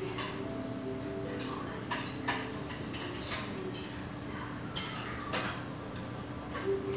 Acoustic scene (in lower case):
restaurant